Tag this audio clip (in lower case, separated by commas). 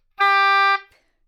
wind instrument, music, musical instrument